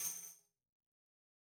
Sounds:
Musical instrument, Percussion, Music, Tambourine

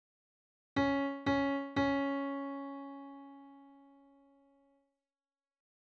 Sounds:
Musical instrument, Music, Keyboard (musical), Piano

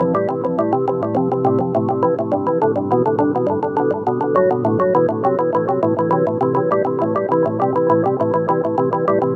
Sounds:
Keyboard (musical), Music, Musical instrument, Organ

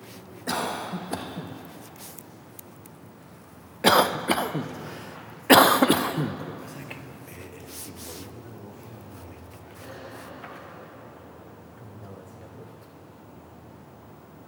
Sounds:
Respiratory sounds, Cough

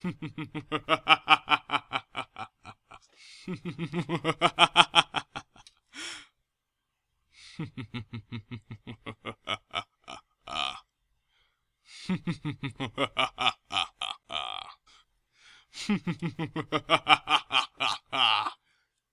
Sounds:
Laughter, Human voice

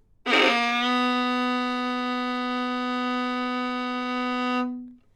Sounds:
Bowed string instrument, Musical instrument, Music

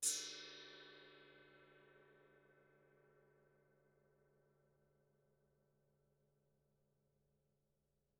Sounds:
Musical instrument, Gong, Percussion, Music

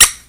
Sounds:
Squeak

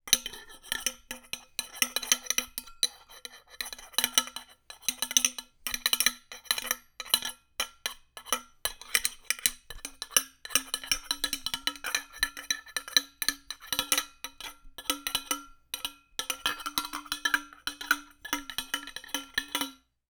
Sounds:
Glass, Chink

